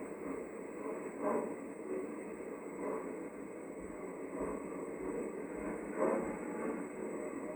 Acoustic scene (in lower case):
elevator